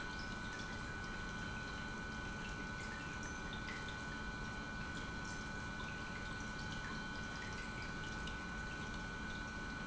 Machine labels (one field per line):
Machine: pump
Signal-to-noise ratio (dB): 6 dB